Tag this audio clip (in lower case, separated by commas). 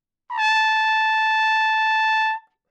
musical instrument, music, trumpet, brass instrument